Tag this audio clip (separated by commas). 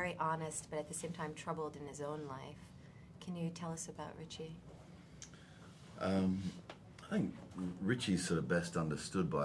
inside a large room or hall, Speech